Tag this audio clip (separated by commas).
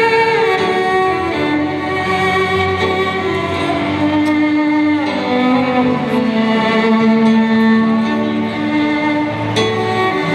Musical instrument, Music, Violin